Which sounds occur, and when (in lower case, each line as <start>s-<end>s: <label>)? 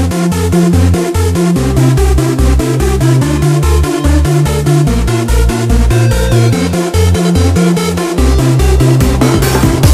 0.0s-9.9s: music